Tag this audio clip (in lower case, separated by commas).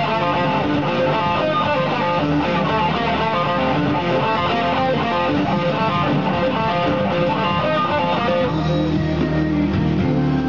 music, plucked string instrument, guitar, musical instrument